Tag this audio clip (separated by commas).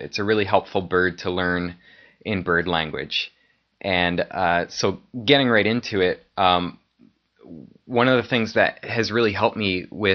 monologue, Speech